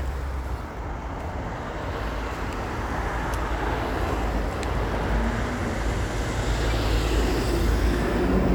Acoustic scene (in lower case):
street